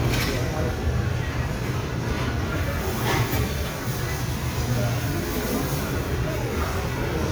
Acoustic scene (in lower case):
restaurant